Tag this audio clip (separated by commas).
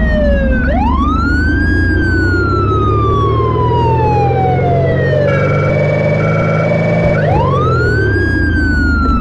Vehicle